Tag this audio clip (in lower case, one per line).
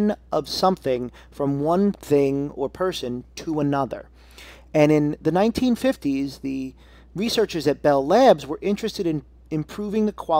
speech